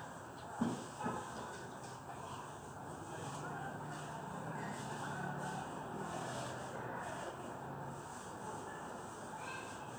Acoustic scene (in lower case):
residential area